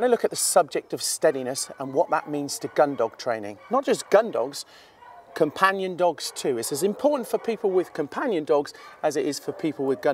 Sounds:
speech

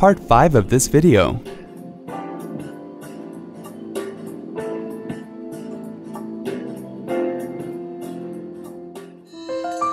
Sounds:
music, speech

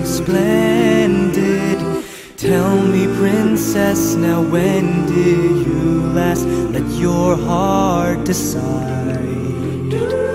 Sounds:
music

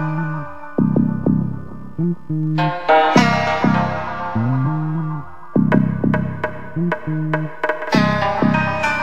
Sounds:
blues, music

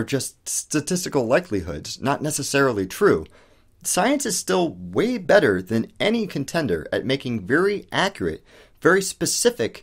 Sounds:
speech

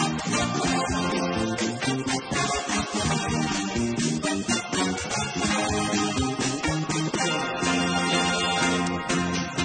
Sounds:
music

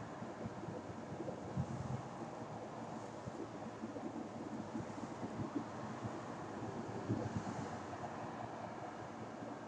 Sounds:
bird

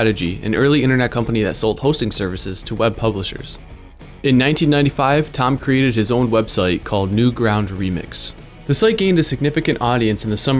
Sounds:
music, speech

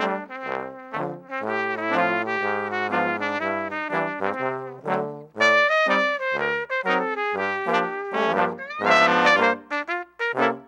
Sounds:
trumpet, playing trombone, brass instrument, trombone, music

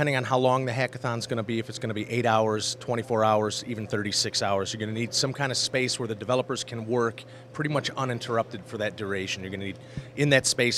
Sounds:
speech

